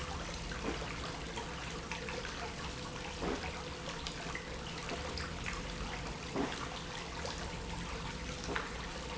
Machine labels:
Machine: pump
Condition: abnormal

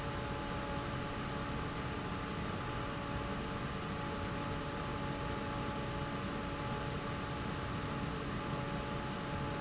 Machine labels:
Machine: fan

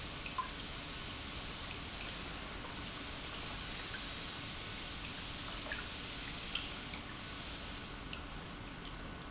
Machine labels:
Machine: pump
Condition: normal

